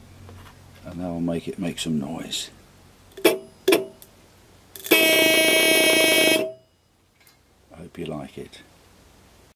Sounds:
speech, honking

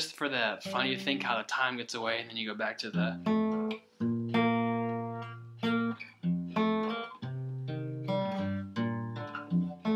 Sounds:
plucked string instrument, musical instrument, guitar, tapping (guitar technique)

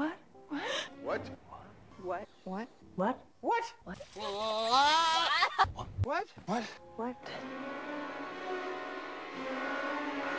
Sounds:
music, speech

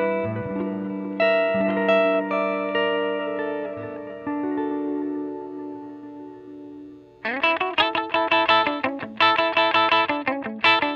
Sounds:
musical instrument, guitar, music, effects unit, inside a small room, plucked string instrument

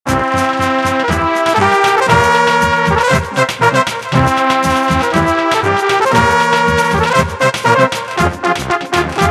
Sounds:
piano, electric piano, keyboard (musical)

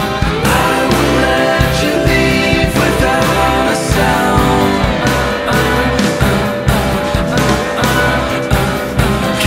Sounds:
music

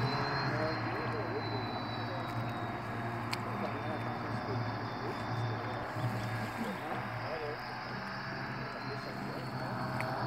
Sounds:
vehicle, speech, water vehicle, motorboat

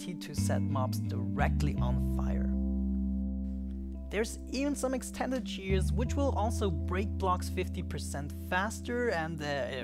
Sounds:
music, speech

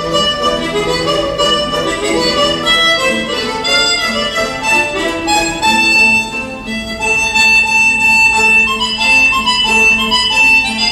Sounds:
fiddle, musical instrument, music, pizzicato, violin

